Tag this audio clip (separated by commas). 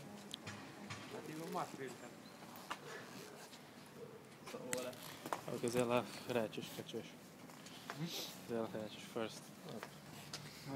Speech